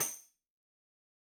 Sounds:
Music, Tambourine, Musical instrument, Percussion

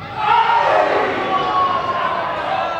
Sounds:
Human voice, Shout, Human group actions, Cheering

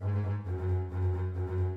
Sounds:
Musical instrument, Music, Bowed string instrument

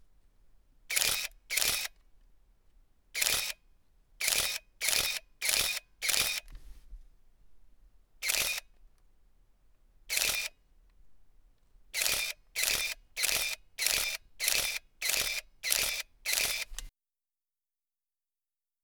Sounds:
Camera, Mechanisms

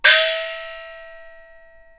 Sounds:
Musical instrument, Music, Gong, Percussion

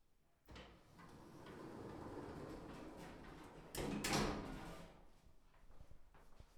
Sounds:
Sliding door, Door, home sounds

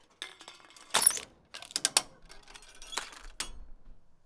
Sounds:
Crushing

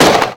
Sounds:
Gunshot, Explosion

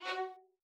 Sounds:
Bowed string instrument, Music, Musical instrument

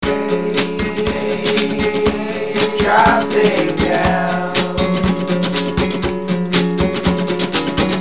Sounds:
Plucked string instrument, Guitar, Music, Acoustic guitar, Human voice, Musical instrument

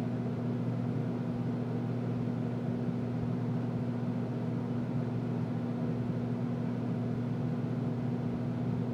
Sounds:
Mechanisms, Engine

